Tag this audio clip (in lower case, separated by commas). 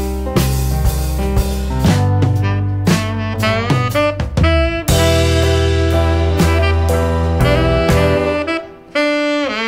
saxophone, music